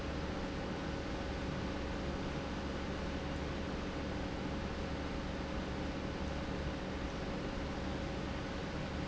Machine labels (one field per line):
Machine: pump